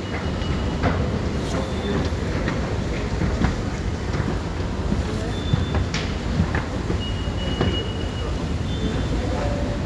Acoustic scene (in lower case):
subway station